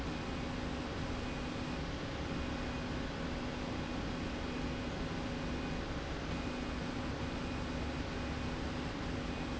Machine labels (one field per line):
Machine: slide rail